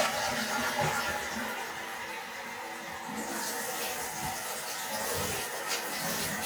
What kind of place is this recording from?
restroom